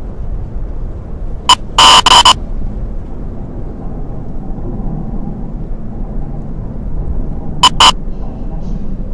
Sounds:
inside a large room or hall

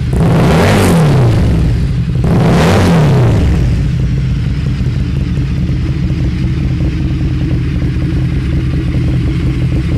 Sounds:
Clatter

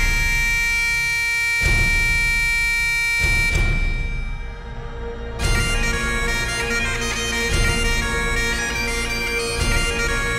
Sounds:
Music

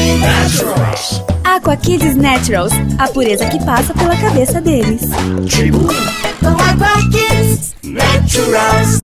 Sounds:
Speech, Jingle (music), Music

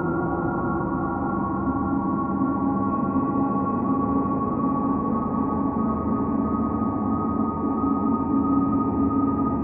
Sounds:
Music, Electronic music, Ambient music

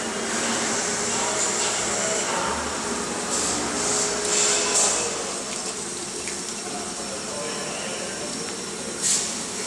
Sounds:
Speech

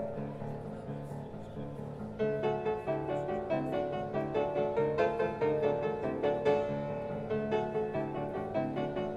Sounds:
Music

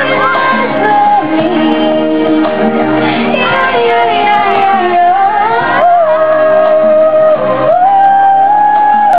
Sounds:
Music

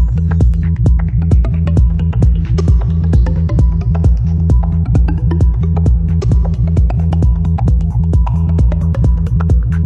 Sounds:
Electronic music, Music, Techno

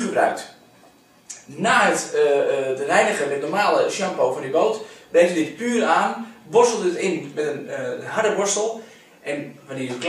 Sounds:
Speech

